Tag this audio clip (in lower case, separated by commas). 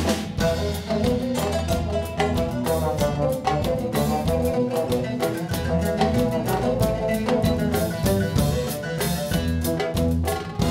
brass instrument, trombone